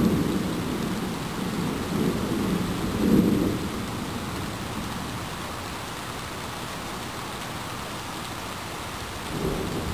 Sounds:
rain

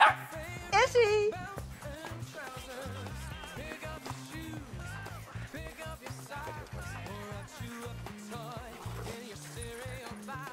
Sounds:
music, speech

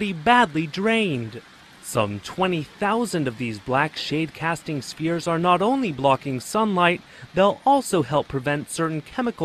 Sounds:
speech

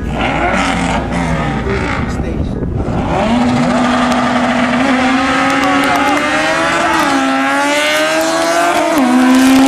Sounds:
speech

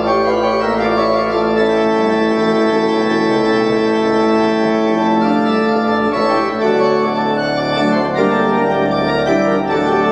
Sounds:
playing electronic organ

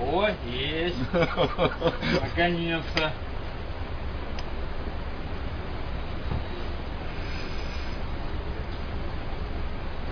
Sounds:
speech

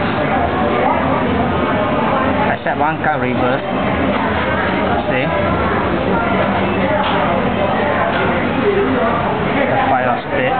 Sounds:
speech

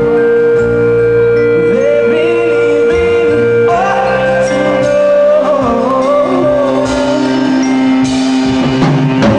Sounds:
music

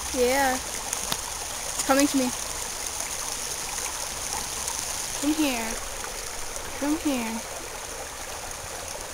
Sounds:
speech

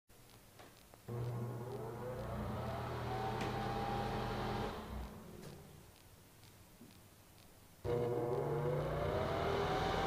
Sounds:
bathroom ventilation fan running

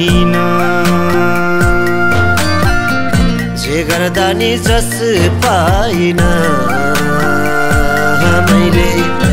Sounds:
music

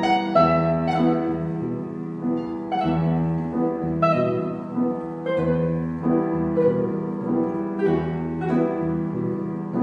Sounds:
music, plucked string instrument, musical instrument, piano, guitar

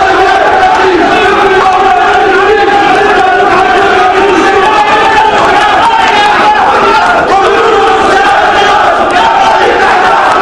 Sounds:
speech

